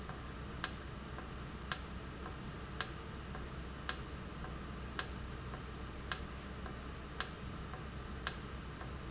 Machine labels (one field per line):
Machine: valve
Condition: normal